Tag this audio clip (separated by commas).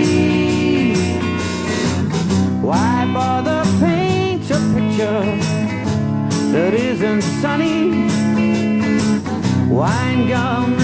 Music